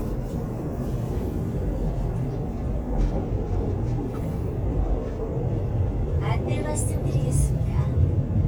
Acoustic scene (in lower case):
subway train